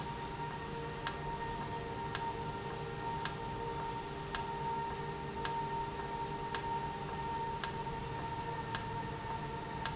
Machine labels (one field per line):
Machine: valve